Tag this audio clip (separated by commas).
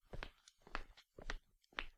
Walk